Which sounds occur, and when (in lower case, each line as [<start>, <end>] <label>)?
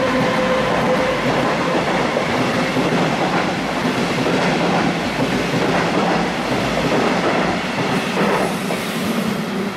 [0.00, 9.75] train
[0.09, 8.86] clickety-clack